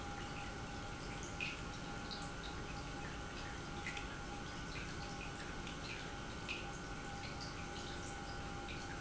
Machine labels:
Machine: pump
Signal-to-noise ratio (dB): 6 dB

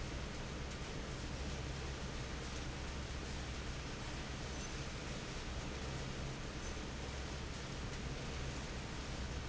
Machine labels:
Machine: fan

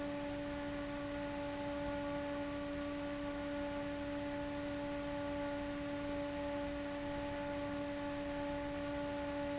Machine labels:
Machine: fan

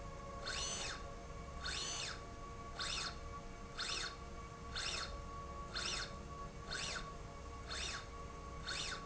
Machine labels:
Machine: slide rail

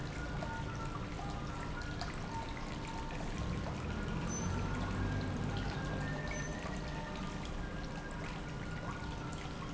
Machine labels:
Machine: pump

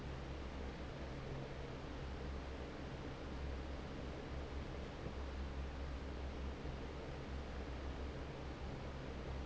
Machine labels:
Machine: fan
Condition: normal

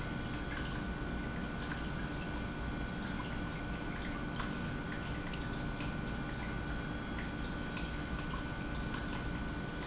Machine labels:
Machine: pump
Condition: normal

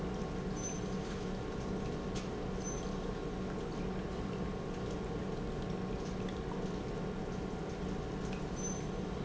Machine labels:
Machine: pump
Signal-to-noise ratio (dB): -6 dB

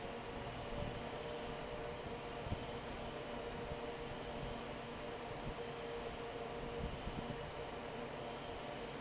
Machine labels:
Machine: fan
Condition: normal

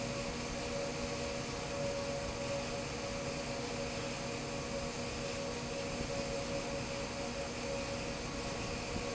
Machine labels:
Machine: fan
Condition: normal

